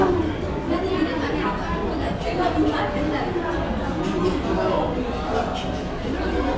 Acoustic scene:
restaurant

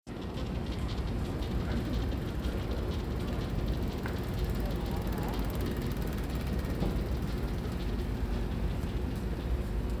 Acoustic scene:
residential area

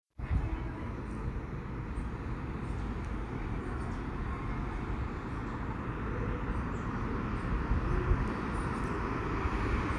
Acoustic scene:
street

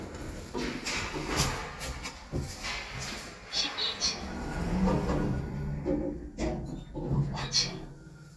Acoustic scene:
elevator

